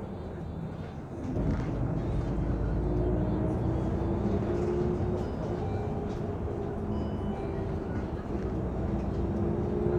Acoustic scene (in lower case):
bus